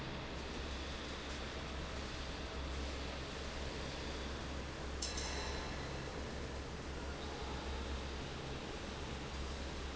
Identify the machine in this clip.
fan